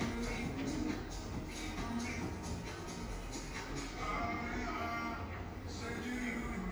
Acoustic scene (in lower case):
cafe